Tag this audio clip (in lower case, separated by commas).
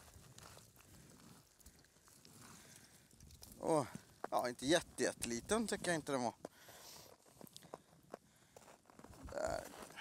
speech, outside, rural or natural